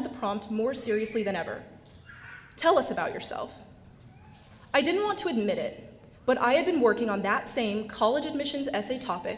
Women giving a speech